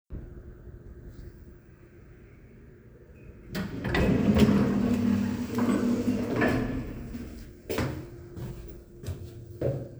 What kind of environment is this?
elevator